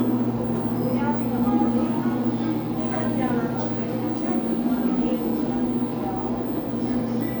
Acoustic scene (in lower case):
cafe